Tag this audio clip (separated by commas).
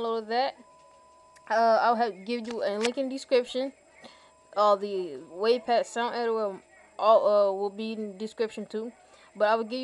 Speech